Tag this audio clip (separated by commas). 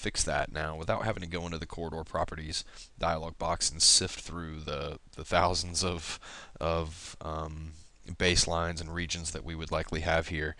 Speech